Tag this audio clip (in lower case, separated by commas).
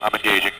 human voice, man speaking, speech